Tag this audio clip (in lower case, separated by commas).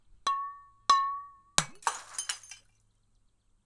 glass, shatter